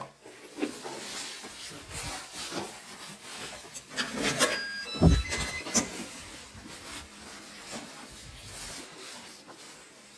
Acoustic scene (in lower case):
elevator